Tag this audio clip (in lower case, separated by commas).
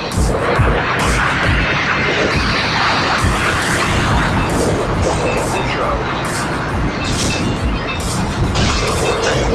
music